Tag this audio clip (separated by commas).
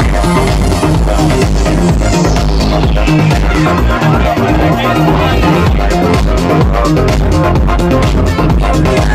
Music, Speech